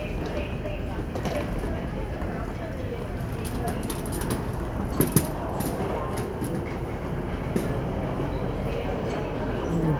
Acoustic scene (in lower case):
subway station